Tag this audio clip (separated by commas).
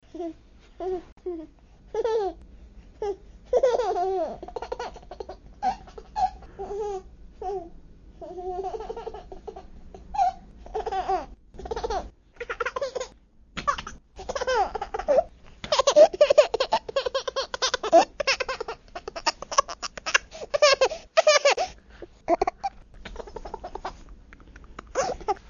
Laughter, Human voice